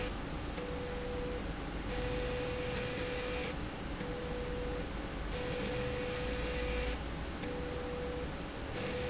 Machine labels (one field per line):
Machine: slide rail